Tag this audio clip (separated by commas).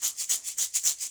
Percussion, Rattle (instrument), Musical instrument, Music